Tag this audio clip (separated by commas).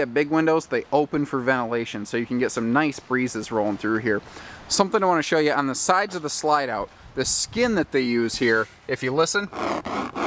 Speech